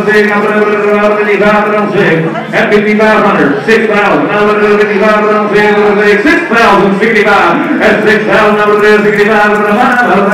Amplified male voice while horse clip-clops